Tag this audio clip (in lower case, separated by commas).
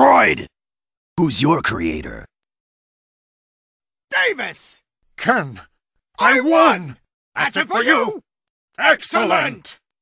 speech